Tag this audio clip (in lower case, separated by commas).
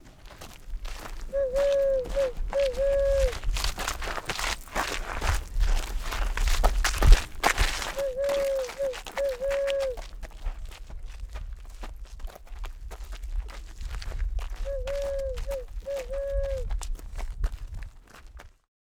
bird, wild animals, animal